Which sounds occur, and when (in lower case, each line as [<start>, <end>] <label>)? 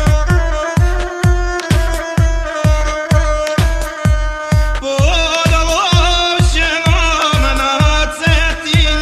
[0.00, 9.01] music
[4.71, 9.01] male singing